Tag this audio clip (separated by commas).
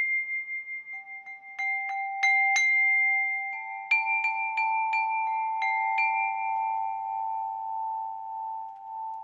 xylophone, Glockenspiel, Mallet percussion